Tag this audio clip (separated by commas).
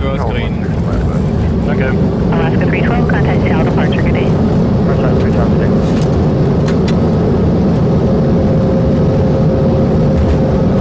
airplane